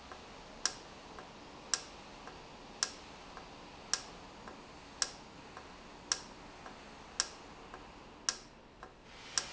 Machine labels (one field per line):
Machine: valve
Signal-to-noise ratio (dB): 6 dB